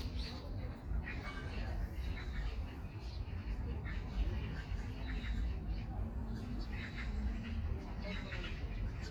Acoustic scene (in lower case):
park